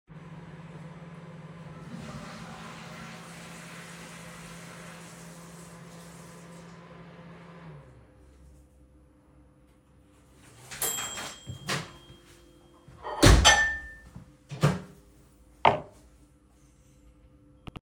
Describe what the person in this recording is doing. I am microwaving water while my roommate uses the toilet then washes hands, while I take out the glass from the microwave